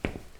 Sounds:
walk

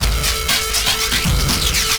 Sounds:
drum kit, music, percussion, musical instrument

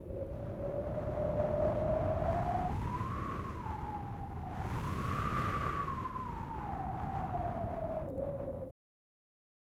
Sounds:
wind

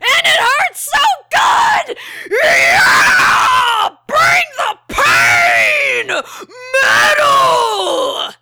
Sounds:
shout, yell, human voice, screaming

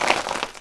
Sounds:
crushing

